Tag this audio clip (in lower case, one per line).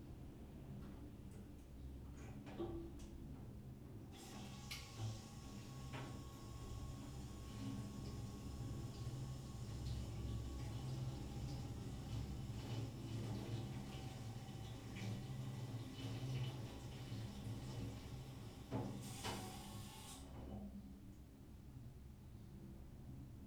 bathtub (filling or washing)
domestic sounds